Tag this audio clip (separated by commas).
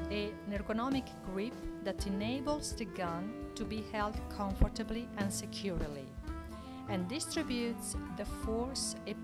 Speech, Music